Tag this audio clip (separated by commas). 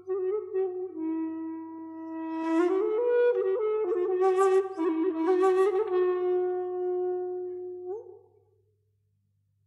Flute, Music